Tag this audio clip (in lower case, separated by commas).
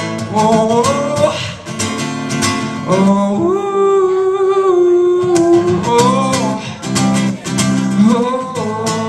male singing, speech, music